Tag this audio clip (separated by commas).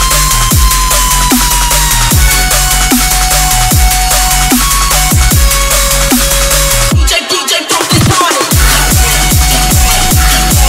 Music